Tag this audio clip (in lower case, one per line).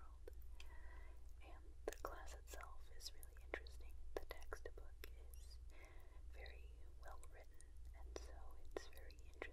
chewing